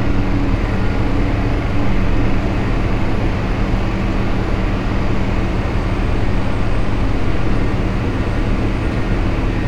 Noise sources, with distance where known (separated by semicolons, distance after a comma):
engine of unclear size